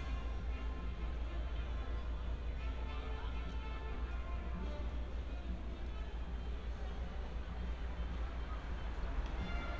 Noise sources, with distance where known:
music from a fixed source, far

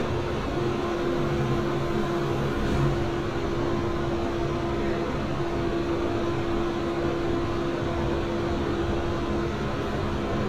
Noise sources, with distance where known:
large-sounding engine, near

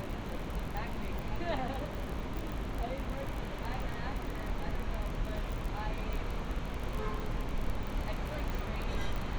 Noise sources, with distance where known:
person or small group talking

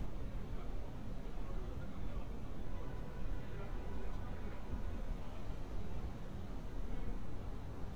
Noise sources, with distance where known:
person or small group talking, far

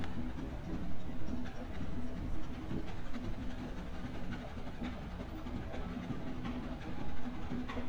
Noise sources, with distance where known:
music from a fixed source

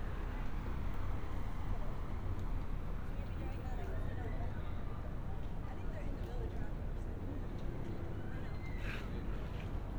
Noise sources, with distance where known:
person or small group talking, far

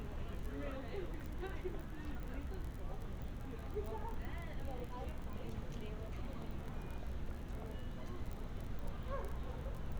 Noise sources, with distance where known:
person or small group talking, near

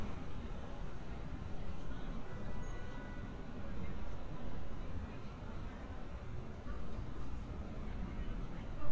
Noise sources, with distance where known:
car horn, far; person or small group talking

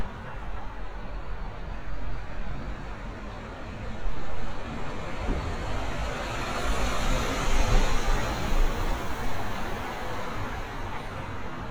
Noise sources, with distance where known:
engine of unclear size, near

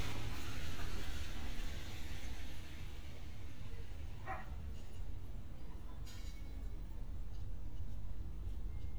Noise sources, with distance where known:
dog barking or whining, near

